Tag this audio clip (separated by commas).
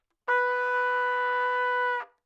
Music, Brass instrument, Trumpet, Musical instrument